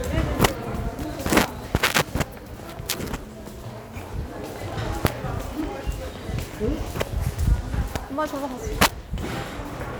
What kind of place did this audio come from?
subway station